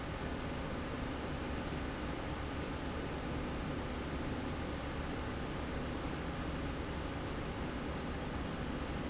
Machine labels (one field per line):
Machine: slide rail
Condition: normal